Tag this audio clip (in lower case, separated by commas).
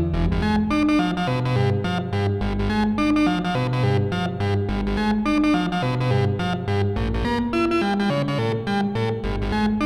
music, musical instrument, synthesizer